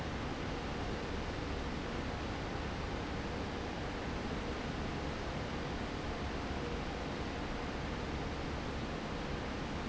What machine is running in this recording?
fan